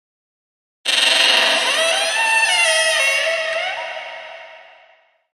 Squeaky door opening ominously